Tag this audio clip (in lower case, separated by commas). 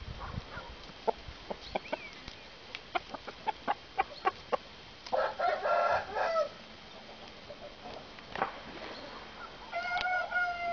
fowl, chicken crowing, cluck, rooster, crowing